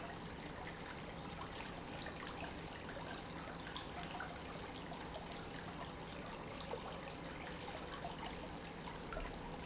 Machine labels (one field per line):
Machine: pump